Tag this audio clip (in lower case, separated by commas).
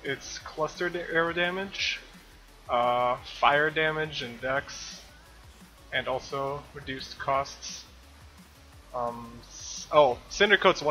speech, music